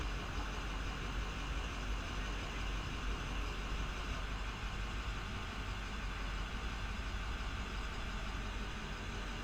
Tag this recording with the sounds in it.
large-sounding engine